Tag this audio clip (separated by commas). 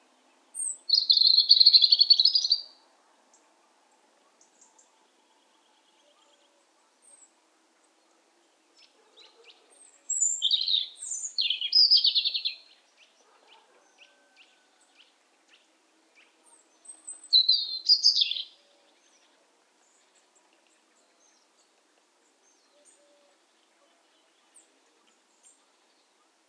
bird song, Bird, Wild animals, Animal